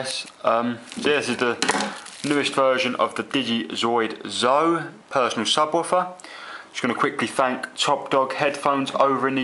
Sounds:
speech

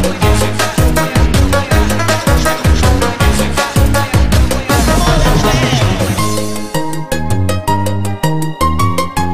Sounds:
house music, music

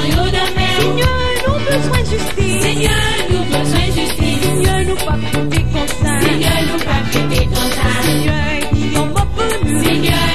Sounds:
music

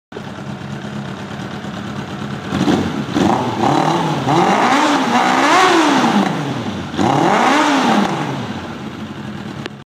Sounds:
clatter

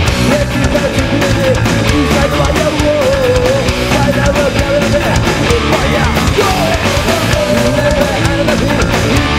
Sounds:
music

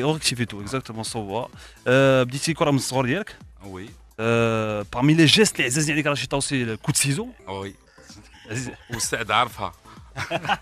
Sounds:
music, speech

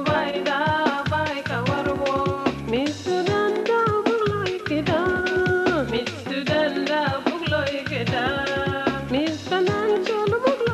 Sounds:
music

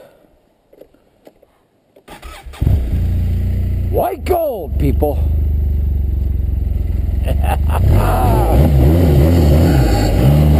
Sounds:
speech

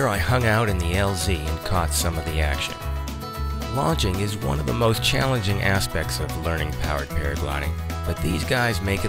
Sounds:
music, speech

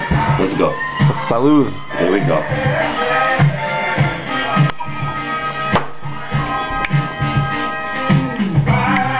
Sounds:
speech, music

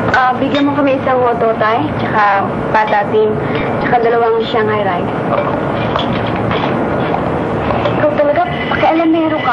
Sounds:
speech

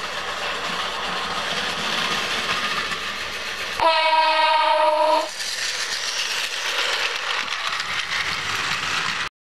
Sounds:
train, car horn

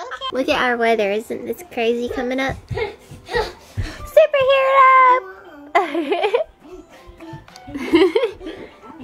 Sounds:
laughter, child speech, speech, music

